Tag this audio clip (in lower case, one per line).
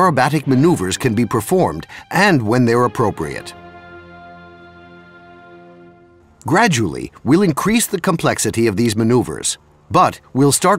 speech
music